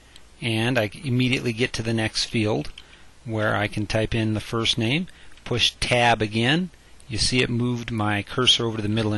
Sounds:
Speech

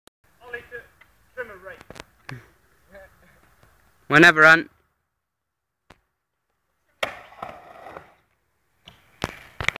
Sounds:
Skateboard, Speech

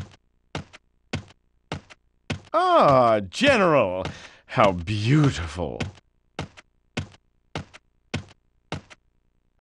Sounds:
Speech

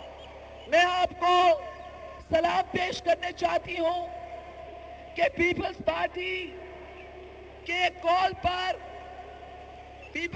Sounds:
Narration, woman speaking, Speech

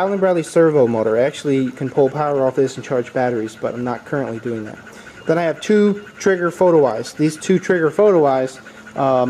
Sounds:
Speech

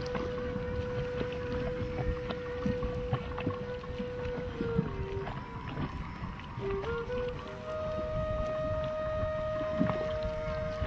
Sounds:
Music, Boat, Vehicle

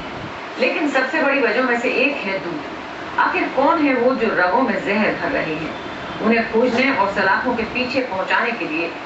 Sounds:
Speech

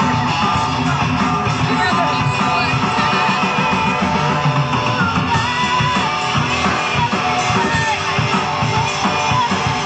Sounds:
Singing, Speech, outside, urban or man-made, Music

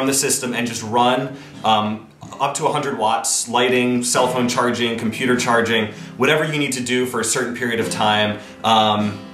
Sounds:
Speech, Music

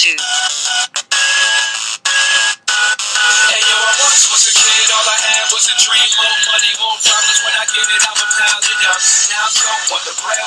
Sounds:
Music

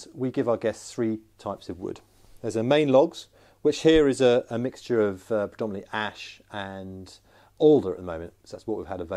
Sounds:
Speech

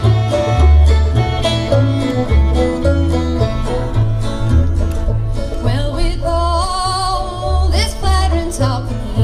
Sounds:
Music, Country, playing banjo, fiddle, Plucked string instrument, Singing, Banjo

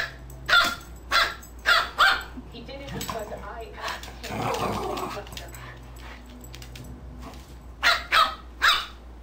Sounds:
Animal, Dog, Speech, Domestic animals

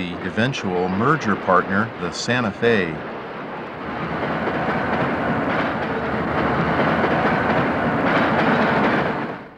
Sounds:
Vehicle, Rail transport, Railroad car, Speech, Train

